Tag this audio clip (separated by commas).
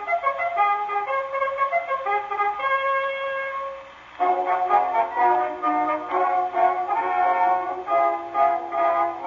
Music